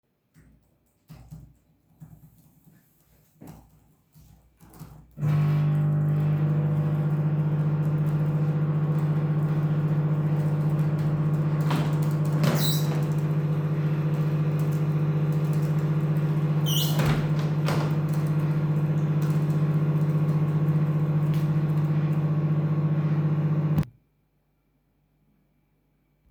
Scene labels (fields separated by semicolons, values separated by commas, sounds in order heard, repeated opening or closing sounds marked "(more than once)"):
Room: kitchen; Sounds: keyboard typing, microwave, window (more than once)